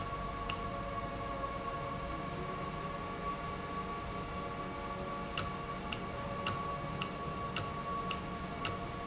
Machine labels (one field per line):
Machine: valve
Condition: normal